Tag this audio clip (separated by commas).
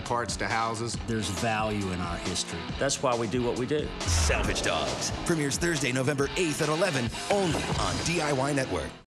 Speech, Music